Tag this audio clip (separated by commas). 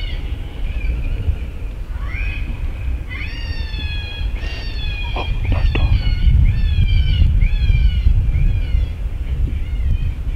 Dog